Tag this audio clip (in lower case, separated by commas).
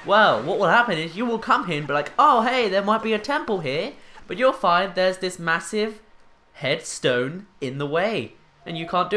speech, music